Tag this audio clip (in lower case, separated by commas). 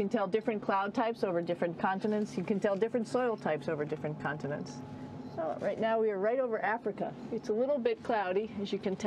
speech